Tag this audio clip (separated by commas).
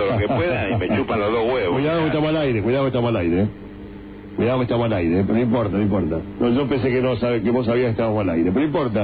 Speech